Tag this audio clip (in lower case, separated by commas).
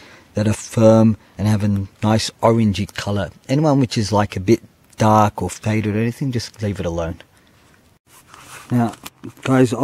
speech